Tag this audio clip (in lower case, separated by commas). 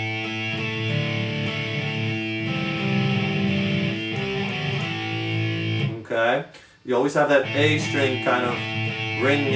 musical instrument, music, electric guitar, plucked string instrument, speech, guitar